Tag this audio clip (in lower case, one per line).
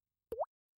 liquid
rain
raindrop
drip
water